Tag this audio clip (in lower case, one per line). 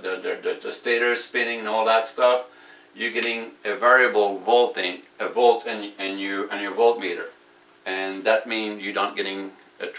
speech